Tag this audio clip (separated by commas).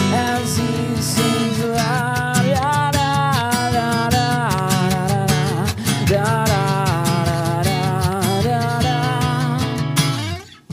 Music